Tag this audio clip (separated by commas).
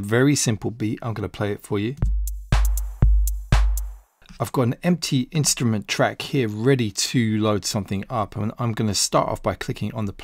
Music, Sampler, Speech